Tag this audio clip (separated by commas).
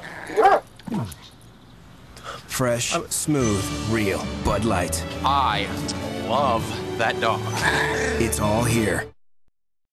Speech, Dog, Domestic animals, Bow-wow, Music